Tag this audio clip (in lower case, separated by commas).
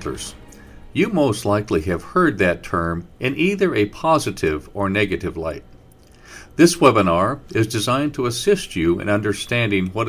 speech